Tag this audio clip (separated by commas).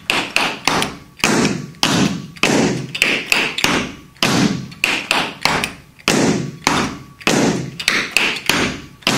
tap dancing